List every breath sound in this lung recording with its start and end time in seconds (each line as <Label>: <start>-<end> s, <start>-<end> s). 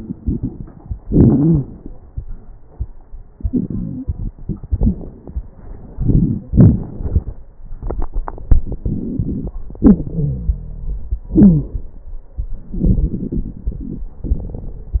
Inhalation: 0.00-0.90 s, 5.96-6.50 s, 8.84-9.52 s
Exhalation: 1.04-1.85 s, 6.49-7.43 s, 9.80-11.21 s
Wheeze: 1.04-1.66 s, 3.44-4.06 s, 9.80-11.21 s, 11.34-11.78 s
Crackles: 0.00-0.90 s, 5.96-6.43 s, 6.49-7.43 s, 8.84-9.52 s